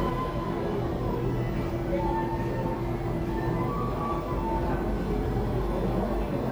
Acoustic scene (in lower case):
crowded indoor space